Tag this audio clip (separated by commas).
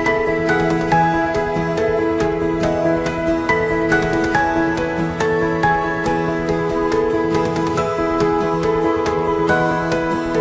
Music